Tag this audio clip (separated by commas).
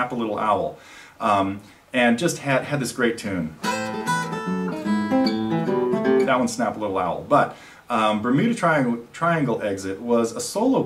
Plucked string instrument, Musical instrument, Guitar, Strum, Acoustic guitar